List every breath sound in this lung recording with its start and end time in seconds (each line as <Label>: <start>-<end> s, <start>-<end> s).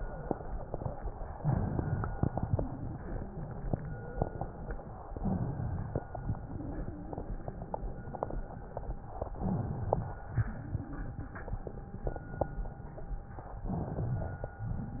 Inhalation: 1.35-2.10 s, 5.16-6.01 s, 9.33-10.06 s, 13.67-14.55 s
Exhalation: 2.18-5.04 s, 6.19-9.23 s, 10.28-13.47 s
Crackles: 2.18-5.04 s